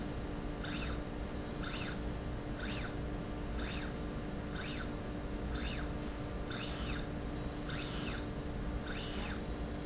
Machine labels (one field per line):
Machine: slide rail